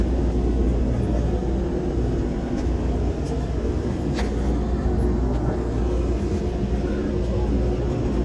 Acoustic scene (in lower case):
subway train